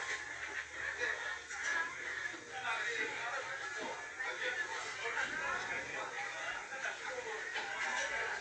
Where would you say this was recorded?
in a crowded indoor space